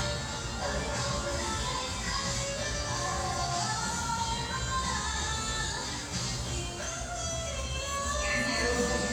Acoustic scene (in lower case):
restaurant